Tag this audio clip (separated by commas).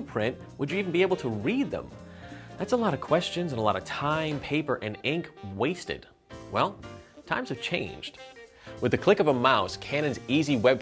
Music, Speech